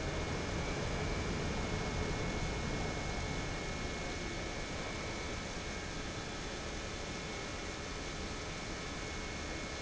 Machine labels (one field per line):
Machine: pump